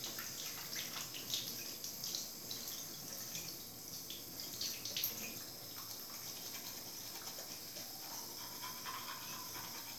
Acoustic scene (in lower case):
restroom